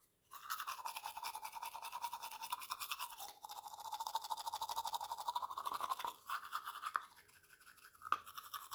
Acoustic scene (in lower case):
restroom